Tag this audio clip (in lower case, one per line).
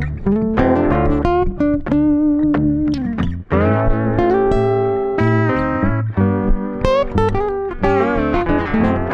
music